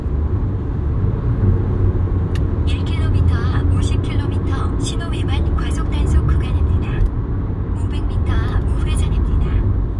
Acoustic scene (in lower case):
car